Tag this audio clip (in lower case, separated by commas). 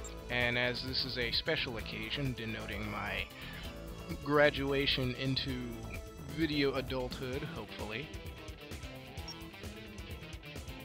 speech, music